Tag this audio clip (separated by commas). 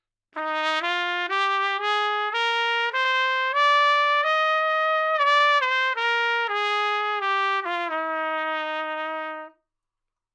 Brass instrument, Trumpet, Music, Musical instrument